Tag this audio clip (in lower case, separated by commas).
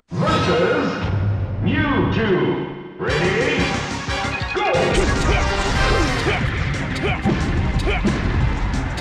speech, music